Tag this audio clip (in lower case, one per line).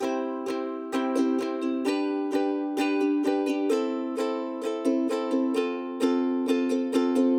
musical instrument
music
plucked string instrument